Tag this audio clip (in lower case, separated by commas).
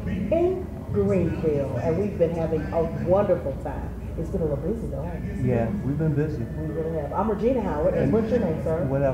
speech